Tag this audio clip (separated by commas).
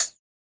Percussion, Music, Musical instrument, Hi-hat, Cymbal